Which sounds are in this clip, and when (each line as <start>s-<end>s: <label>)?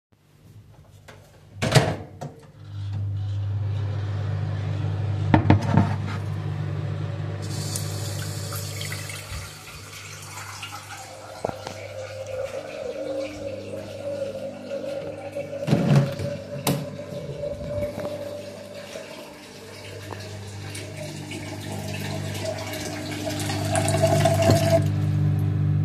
1.5s-12.7s: microwave
7.6s-24.9s: running water